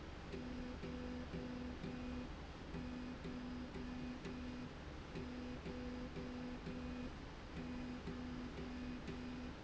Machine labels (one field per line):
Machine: slide rail